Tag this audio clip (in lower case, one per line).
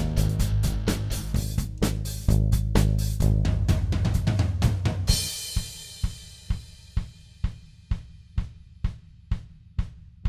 hi-hat
drum kit
cymbal
snare drum